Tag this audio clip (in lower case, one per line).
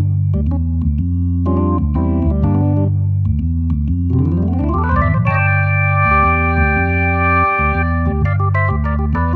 organ